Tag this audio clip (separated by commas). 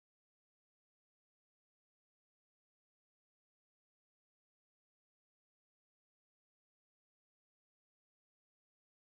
Silence